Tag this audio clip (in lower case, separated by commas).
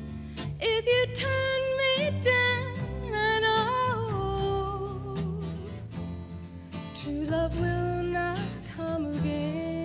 singing, country, music